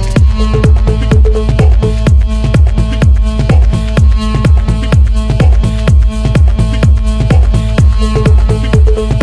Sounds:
House music, Music, Electronic music

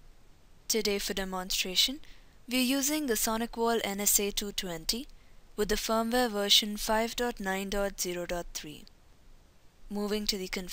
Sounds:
Speech

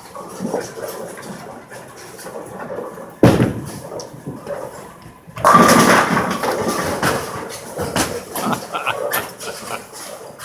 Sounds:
striking bowling

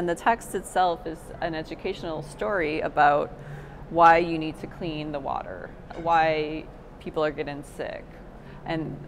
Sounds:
Speech

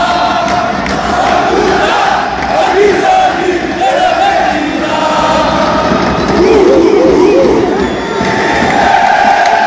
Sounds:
Speech

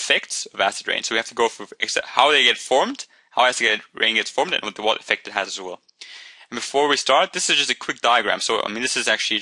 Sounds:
Speech

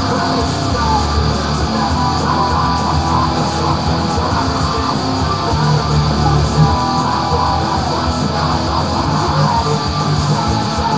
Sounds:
Music, Plucked string instrument, Electric guitar, Strum, Musical instrument, Guitar

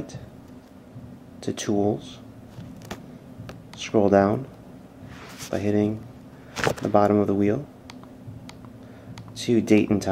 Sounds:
Speech

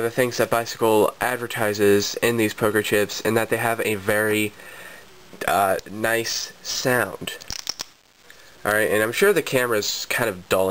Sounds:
Speech

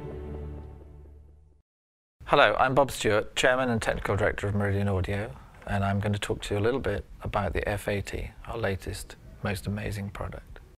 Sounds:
Speech

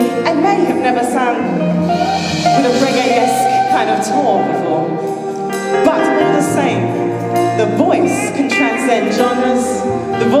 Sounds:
Speech, Music

